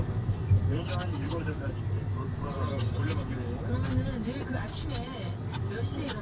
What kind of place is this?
car